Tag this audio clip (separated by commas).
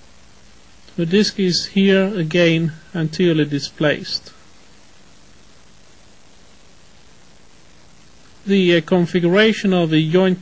Speech